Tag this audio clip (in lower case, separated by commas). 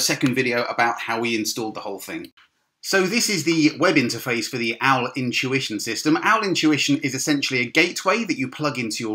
speech